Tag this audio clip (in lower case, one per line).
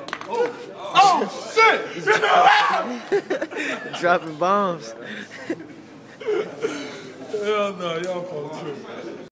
speech